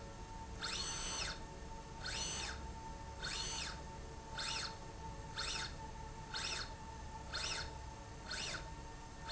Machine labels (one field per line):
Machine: slide rail